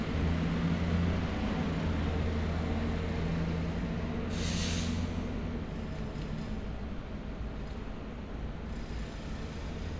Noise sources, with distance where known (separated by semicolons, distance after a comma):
large-sounding engine, near; unidentified impact machinery